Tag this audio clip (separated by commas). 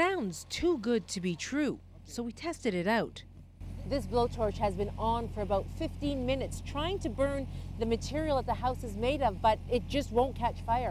Speech